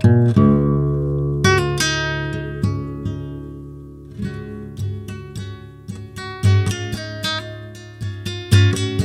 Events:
0.0s-9.0s: background noise
0.0s-9.0s: music

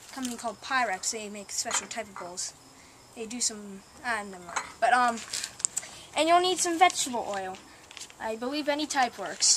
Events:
0.0s-0.4s: generic impact sounds
0.1s-2.4s: man speaking
1.6s-1.9s: generic impact sounds
3.1s-4.4s: man speaking
4.5s-4.6s: generic impact sounds
4.8s-5.2s: man speaking
5.0s-5.8s: generic impact sounds
6.1s-7.5s: man speaking
6.5s-7.5s: generic impact sounds
7.8s-8.1s: generic impact sounds
8.1s-9.5s: man speaking
8.8s-9.1s: generic impact sounds

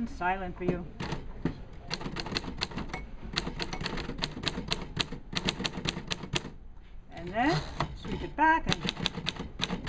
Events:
0.0s-0.8s: female speech
0.0s-9.8s: mechanisms
0.6s-0.8s: typewriter
1.0s-1.2s: typewriter
1.4s-1.5s: typewriter
1.7s-1.8s: typewriter
1.9s-3.0s: typewriter
2.9s-3.0s: generic impact sounds
3.3s-5.2s: typewriter
3.7s-3.8s: generic impact sounds
5.3s-6.5s: typewriter
6.7s-7.0s: surface contact
7.0s-7.6s: female speech
7.1s-7.3s: generic impact sounds
7.4s-7.8s: gears
7.8s-7.9s: generic impact sounds
8.0s-8.4s: gears
8.0s-8.6s: female speech
8.6s-9.4s: typewriter
9.6s-9.8s: typewriter
9.8s-9.8s: typewriter

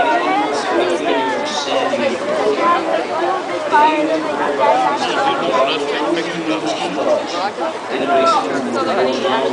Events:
0.0s-2.5s: male speech
0.0s-9.5s: speech noise
3.7s-7.2s: male speech
7.9s-9.5s: male speech

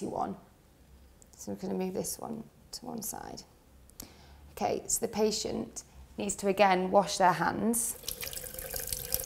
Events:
0.0s-0.3s: woman speaking
0.0s-9.2s: mechanisms
1.2s-1.2s: tick
1.2s-2.4s: woman speaking
1.3s-1.3s: tick
2.7s-2.7s: tick
2.7s-3.4s: woman speaking
3.8s-3.9s: tick
4.0s-4.0s: tick
4.5s-5.8s: woman speaking
6.1s-7.8s: woman speaking
6.5s-6.6s: tick
7.9s-9.2s: sink (filling or washing)
7.9s-9.2s: faucet

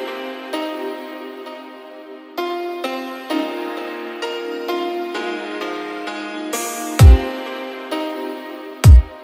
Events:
0.0s-9.2s: music

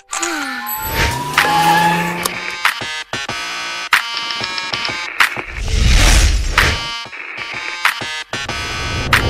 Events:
0.0s-9.2s: music
0.0s-0.4s: single-lens reflex camera
0.1s-0.7s: human voice
1.3s-2.5s: motorcycle
4.8s-4.9s: typing
6.5s-6.8s: sound effect
7.1s-7.8s: noise
8.4s-9.2s: swoosh

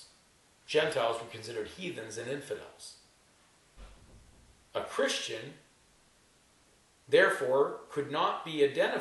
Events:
0.0s-0.2s: surface contact
0.0s-9.0s: background noise
0.7s-3.0s: male speech
3.8s-4.0s: surface contact
4.7s-5.6s: male speech
7.1s-7.7s: male speech
7.9s-9.0s: male speech

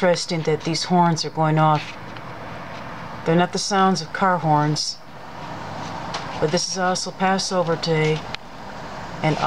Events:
0.0s-1.7s: female speech
0.0s-9.4s: vehicle
0.1s-0.1s: tick
1.0s-1.1s: tick
1.7s-1.9s: generic impact sounds
2.1s-2.2s: tick
2.7s-2.8s: generic impact sounds
3.2s-5.0s: female speech
3.7s-3.8s: tick
5.7s-5.9s: generic impact sounds
6.4s-8.2s: female speech
8.3s-8.4s: tick

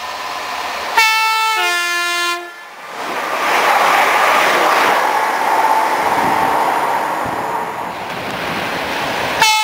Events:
0.0s-9.6s: subway
0.9s-2.5s: train horn

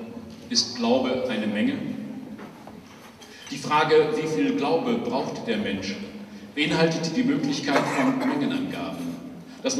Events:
0.0s-9.7s: mechanisms
0.3s-0.5s: breathing
0.4s-1.9s: male speech
2.3s-2.7s: generic impact sounds
2.9s-3.6s: generic impact sounds
3.4s-6.0s: male speech
5.0s-5.5s: generic impact sounds
6.2s-6.4s: breathing
6.5s-9.2s: male speech
7.6s-8.1s: cough
9.0s-9.2s: breathing
9.4s-9.6s: breathing
9.6s-9.7s: male speech

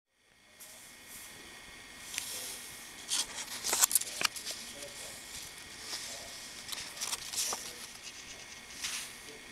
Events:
0.0s-9.5s: mechanisms
0.6s-1.4s: man speaking
1.8s-2.7s: generic impact sounds
2.0s-2.7s: man speaking
2.1s-2.2s: tick
3.0s-6.4s: man speaking
3.3s-5.4s: generic impact sounds
4.2s-4.3s: tick
5.9s-6.7s: generic impact sounds
6.7s-7.8s: man speaking
7.8s-8.7s: generic impact sounds
7.8s-8.7s: scratch
8.6s-9.2s: man speaking

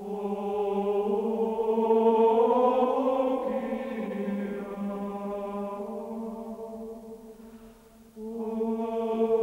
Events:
0.0s-9.4s: background noise
0.0s-9.4s: chant
7.3s-7.8s: surface contact

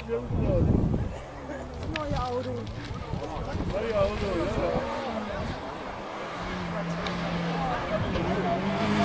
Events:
0.0s-0.6s: male speech
0.0s-9.0s: car
0.0s-9.0s: wind
0.0s-4.8s: conversation
0.2s-1.1s: wind noise (microphone)
1.0s-1.2s: cough
1.3s-5.6s: speech babble
1.4s-1.6s: cough
1.8s-2.6s: woman speaking
2.3s-3.2s: accelerating
3.4s-4.8s: wind noise (microphone)
3.5s-4.9s: male speech
4.5s-5.5s: accelerating
5.3s-5.6s: wind noise (microphone)
6.3s-7.7s: accelerating
6.4s-9.0s: speech babble

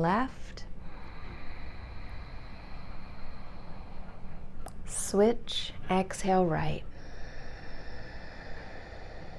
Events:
0.0s-0.7s: woman speaking
0.7s-4.5s: breathing
4.6s-4.8s: human voice
4.8s-6.9s: woman speaking
6.9s-9.3s: breathing

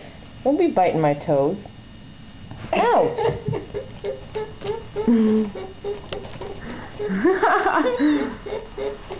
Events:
0.0s-9.1s: mechanisms
0.5s-1.6s: woman speaking
1.7s-1.7s: generic impact sounds
2.7s-3.2s: woman speaking
3.2s-3.9s: laughter
4.1s-5.1s: laughter
4.4s-4.4s: generic impact sounds
5.6s-6.6s: laughter
6.1s-6.2s: generic impact sounds
6.6s-7.0s: breathing
7.0s-8.3s: laughter
7.6s-8.3s: cat
8.0s-8.5s: breathing
8.5s-9.1s: laughter

